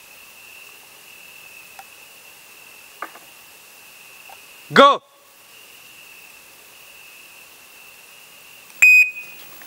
White noise with some clanking and intermittent beeps